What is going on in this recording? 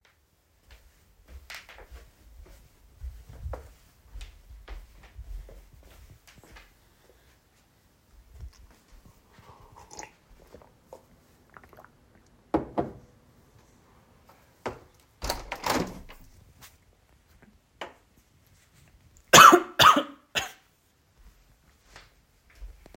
I walked to the kitchen, drank some water, opened the window and coughed.